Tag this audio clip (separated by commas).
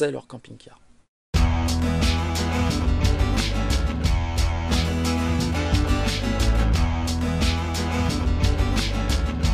Music, Speech